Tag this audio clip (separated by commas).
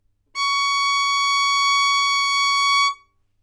Musical instrument, Bowed string instrument, Music